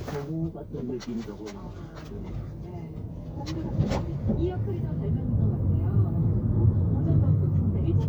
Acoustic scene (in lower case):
car